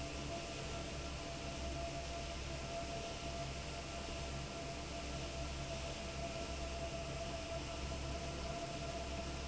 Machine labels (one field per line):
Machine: fan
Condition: normal